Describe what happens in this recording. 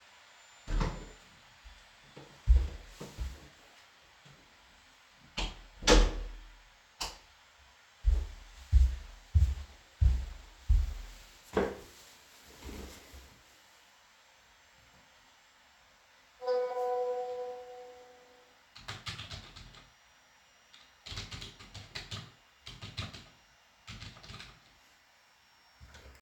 I open the door, step in, close the door and turn on the light. After, I walk to my desk, sit down, where my phone rings and I begin typing.